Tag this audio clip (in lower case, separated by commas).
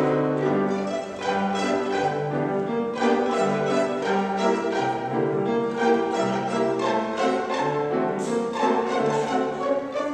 violin, musical instrument, music